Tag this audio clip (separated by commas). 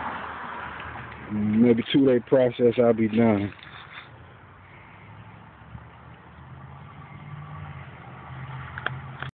Speech